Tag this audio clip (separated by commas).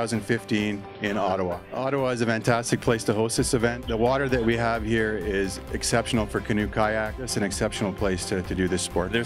Music, Speech